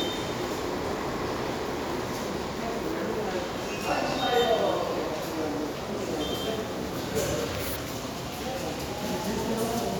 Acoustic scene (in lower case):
subway station